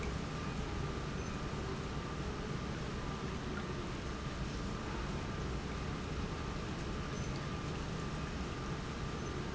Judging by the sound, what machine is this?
pump